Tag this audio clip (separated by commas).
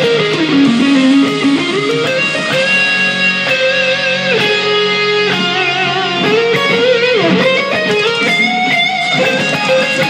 Musical instrument, Guitar, Bass guitar, Plucked string instrument, Strum, Music